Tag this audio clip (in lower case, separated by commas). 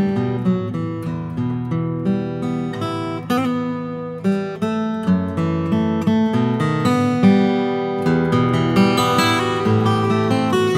acoustic guitar, plucked string instrument, musical instrument, guitar, music